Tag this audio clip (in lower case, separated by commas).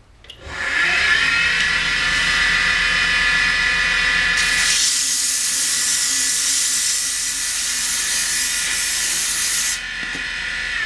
inside a small room, tools